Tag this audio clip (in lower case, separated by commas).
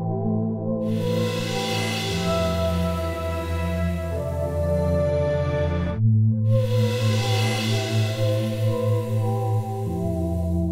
music, ambient music